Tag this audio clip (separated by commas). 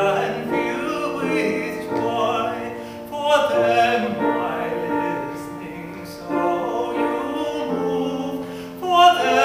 Music, Soul music